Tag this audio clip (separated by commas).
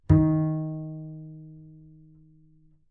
Bowed string instrument, Music, Musical instrument